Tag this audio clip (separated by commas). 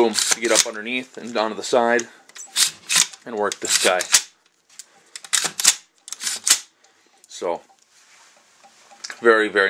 Speech, inside a small room